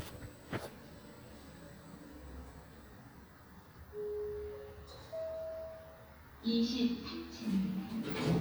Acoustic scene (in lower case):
elevator